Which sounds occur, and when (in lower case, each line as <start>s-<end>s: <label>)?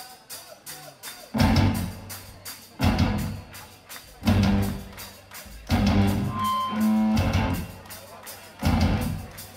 0.0s-0.2s: human voice
0.0s-9.5s: speech noise
0.0s-9.5s: music
0.4s-0.5s: human voice
0.7s-0.8s: human voice
1.0s-1.2s: clapping
1.1s-1.2s: human voice
2.3s-2.7s: speech
3.5s-4.1s: speech
3.5s-3.7s: clapping
3.9s-4.0s: clapping
4.6s-5.5s: clapping
4.8s-5.7s: speech
6.3s-6.8s: brief tone
7.8s-8.5s: speech
7.8s-8.0s: clapping
8.2s-8.4s: clapping
9.3s-9.5s: clapping